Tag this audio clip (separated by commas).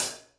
Cymbal, Musical instrument, Percussion, Music, Hi-hat